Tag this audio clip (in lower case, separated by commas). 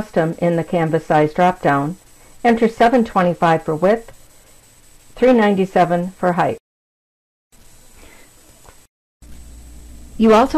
speech